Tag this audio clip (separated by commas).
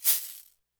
Music, Musical instrument, Percussion, Rattle (instrument)